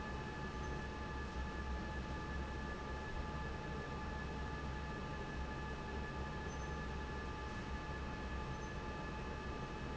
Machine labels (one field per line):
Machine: fan